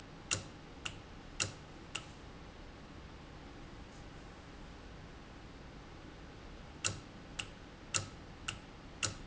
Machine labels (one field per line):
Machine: valve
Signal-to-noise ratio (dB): 6 dB